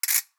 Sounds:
Mechanisms, Ratchet

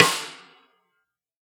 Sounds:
Percussion, Musical instrument, Snare drum, Music, Drum

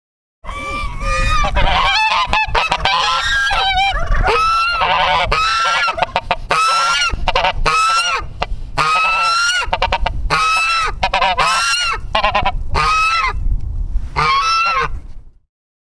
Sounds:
livestock, Animal, Fowl

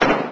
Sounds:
Explosion

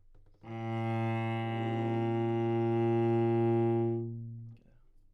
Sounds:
Musical instrument, Music, Bowed string instrument

